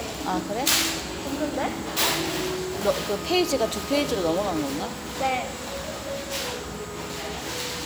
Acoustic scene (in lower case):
restaurant